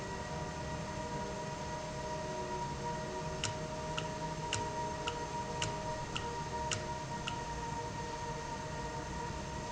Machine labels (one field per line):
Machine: valve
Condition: normal